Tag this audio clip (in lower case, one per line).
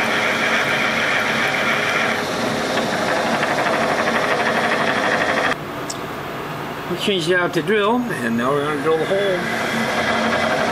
speech